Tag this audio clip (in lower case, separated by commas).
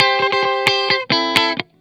musical instrument, electric guitar, music, plucked string instrument, guitar